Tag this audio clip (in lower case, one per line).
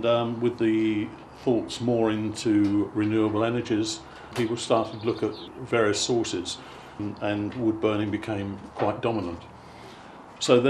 speech